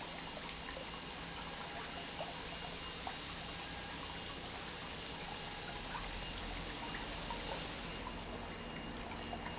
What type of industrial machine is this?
pump